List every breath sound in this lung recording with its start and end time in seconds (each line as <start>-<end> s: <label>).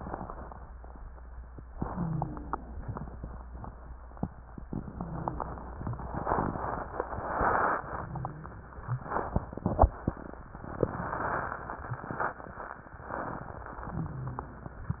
1.75-2.75 s: inhalation
1.84-2.41 s: wheeze